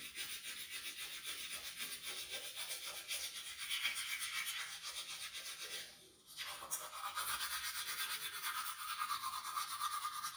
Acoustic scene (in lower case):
restroom